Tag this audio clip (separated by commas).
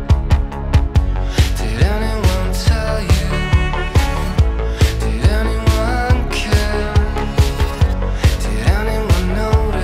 Music